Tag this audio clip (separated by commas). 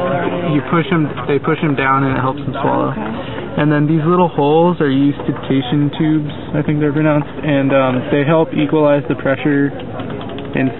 Speech